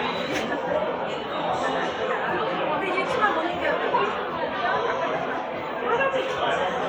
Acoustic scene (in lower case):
cafe